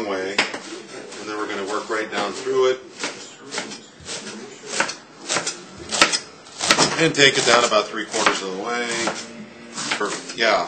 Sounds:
Speech

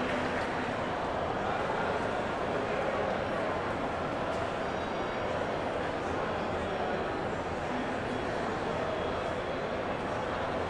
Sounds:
Speech

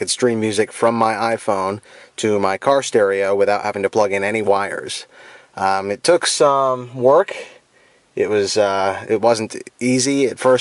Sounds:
Speech

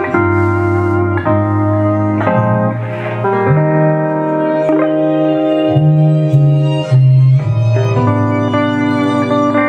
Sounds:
slide guitar

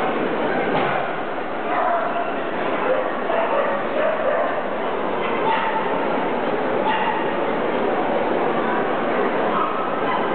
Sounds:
Yip

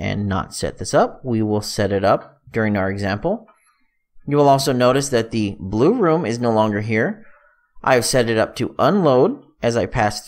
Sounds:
Speech

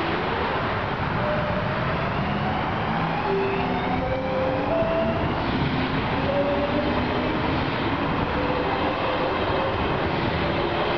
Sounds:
Train, Rail transport, Clickety-clack, train wagon, underground

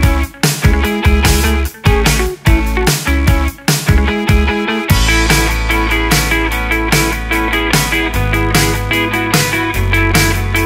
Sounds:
Music

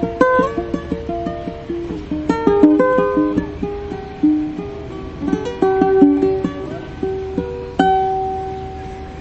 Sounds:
Acoustic guitar, Guitar, Strum, Plucked string instrument, Music, Musical instrument

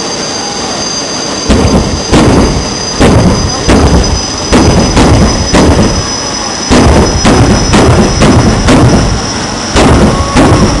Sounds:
Speech, Motor vehicle (road)

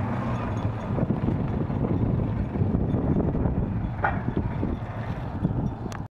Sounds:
Motorboat, Vehicle, speedboat acceleration

